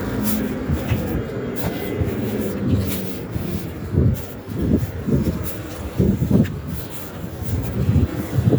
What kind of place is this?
residential area